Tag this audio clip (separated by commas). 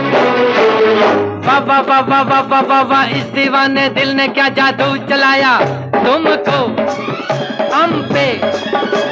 Music, Music of Bollywood